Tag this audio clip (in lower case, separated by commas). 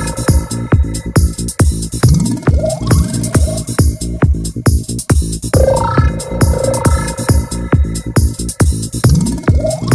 music